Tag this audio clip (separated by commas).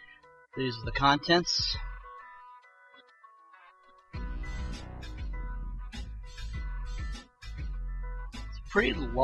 Speech, Music